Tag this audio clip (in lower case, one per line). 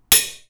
home sounds
silverware